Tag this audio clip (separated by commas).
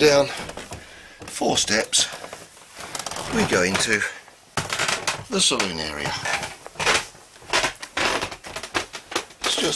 Speech, kayak